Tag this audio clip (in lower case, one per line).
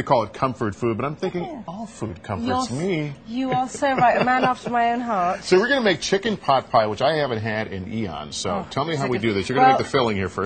speech